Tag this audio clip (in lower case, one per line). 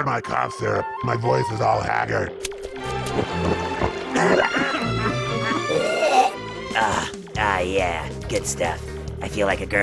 music
speech